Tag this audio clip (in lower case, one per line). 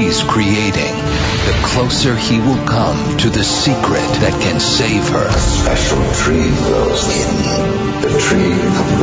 music
speech